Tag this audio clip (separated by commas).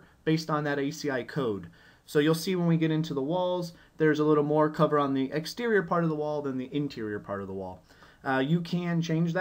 Speech